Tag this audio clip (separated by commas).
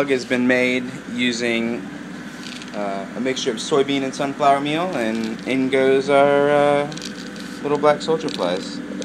Speech